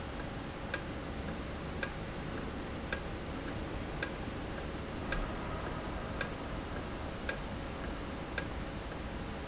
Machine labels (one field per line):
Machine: valve